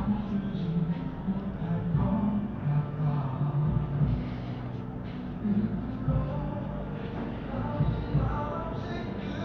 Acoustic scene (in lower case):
cafe